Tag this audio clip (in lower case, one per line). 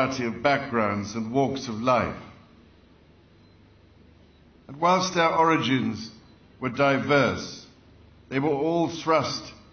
speech